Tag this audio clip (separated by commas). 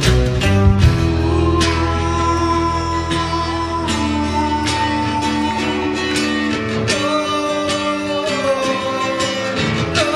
Music